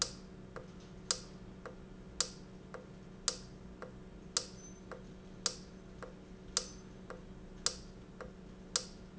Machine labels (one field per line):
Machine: valve